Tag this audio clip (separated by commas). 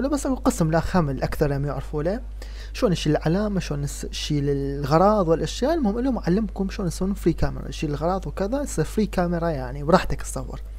Speech